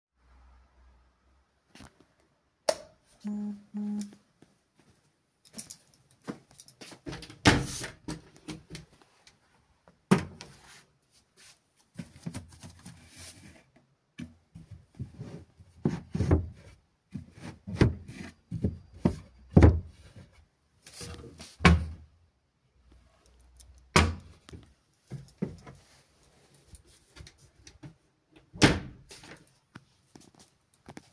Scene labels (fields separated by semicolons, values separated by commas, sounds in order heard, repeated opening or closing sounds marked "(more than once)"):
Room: bedroom; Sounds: light switch, footsteps, wardrobe or drawer (more than once)